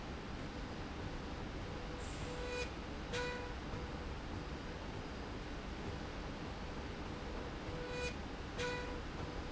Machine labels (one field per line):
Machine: slide rail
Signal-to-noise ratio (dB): 0 dB